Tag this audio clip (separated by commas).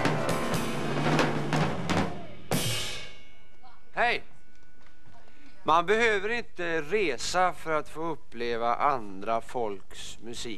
Speech, Music